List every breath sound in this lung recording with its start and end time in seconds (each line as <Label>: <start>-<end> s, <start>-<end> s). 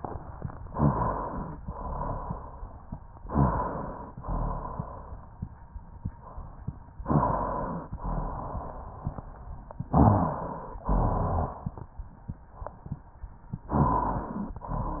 Inhalation: 0.72-1.60 s, 3.25-4.12 s, 7.04-7.91 s, 9.92-10.80 s, 13.74-14.61 s
Exhalation: 1.63-2.51 s, 4.19-5.07 s, 7.99-8.86 s, 10.85-11.73 s
Rhonchi: 0.72-1.60 s, 1.63-2.51 s, 3.25-4.12 s, 4.19-5.07 s, 7.04-7.91 s, 7.99-8.86 s, 9.92-10.80 s, 10.85-11.73 s, 13.74-14.61 s